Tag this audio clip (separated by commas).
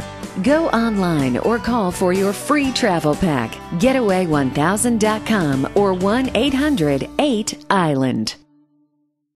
Speech, Music